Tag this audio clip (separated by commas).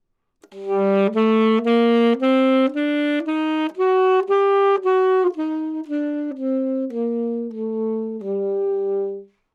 Music, Wind instrument, Musical instrument